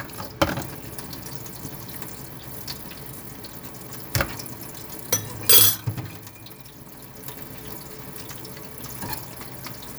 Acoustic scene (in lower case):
kitchen